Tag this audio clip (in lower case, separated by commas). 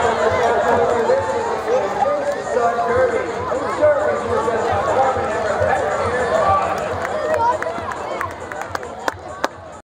speech, music